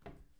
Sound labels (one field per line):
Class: cupboard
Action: closing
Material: wooden